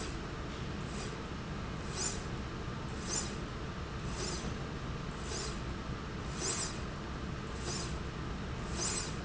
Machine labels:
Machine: slide rail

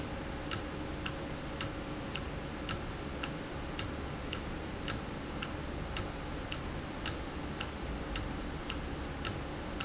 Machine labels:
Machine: valve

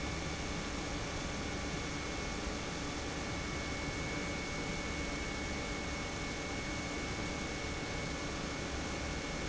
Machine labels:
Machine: pump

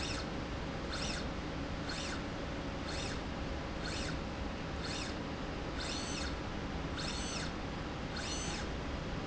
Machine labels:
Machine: slide rail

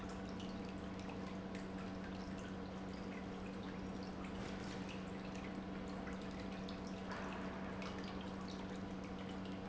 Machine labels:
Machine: pump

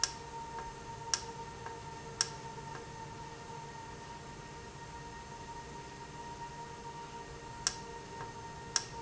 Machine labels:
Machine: valve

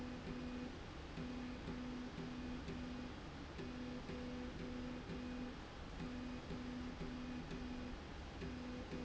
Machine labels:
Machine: slide rail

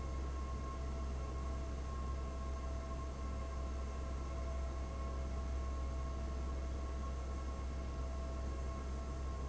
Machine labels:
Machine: fan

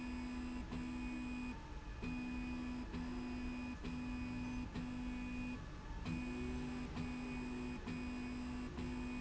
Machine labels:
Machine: slide rail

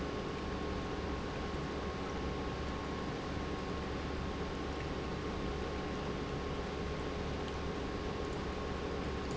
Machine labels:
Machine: pump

